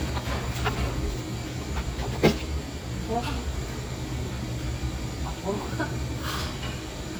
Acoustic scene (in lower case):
cafe